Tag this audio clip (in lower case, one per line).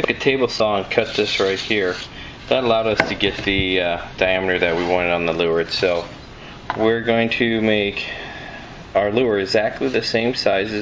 speech